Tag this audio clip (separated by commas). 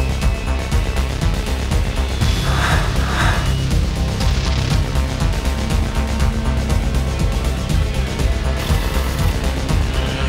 Music